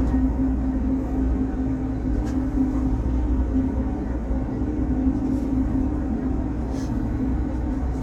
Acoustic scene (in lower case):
bus